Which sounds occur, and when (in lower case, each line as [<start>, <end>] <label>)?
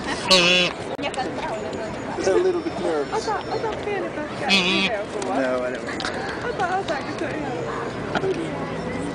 [0.00, 0.24] female speech
[0.00, 7.89] conversation
[0.00, 9.14] motor vehicle (road)
[0.28, 0.72] duck
[0.66, 0.73] generic impact sounds
[0.87, 2.10] female speech
[1.09, 1.14] generic impact sounds
[1.35, 1.46] generic impact sounds
[1.43, 3.65] bird vocalization
[1.68, 1.76] generic impact sounds
[2.13, 3.03] man speaking
[2.61, 2.72] generic impact sounds
[3.04, 5.72] female speech
[3.38, 3.46] generic impact sounds
[3.71, 3.87] generic impact sounds
[4.47, 4.88] duck
[5.14, 5.25] generic impact sounds
[5.15, 5.98] man speaking
[5.30, 5.97] bird vocalization
[5.42, 5.58] generic impact sounds
[5.71, 6.06] generic impact sounds
[6.01, 6.46] caw
[6.22, 6.34] generic impact sounds
[6.42, 7.84] female speech
[6.52, 6.65] generic impact sounds
[6.83, 6.98] generic impact sounds
[7.16, 7.36] generic impact sounds
[7.44, 7.98] bird vocalization
[8.08, 8.21] generic impact sounds
[8.09, 9.14] human voice
[8.27, 9.14] bird vocalization
[8.28, 8.39] generic impact sounds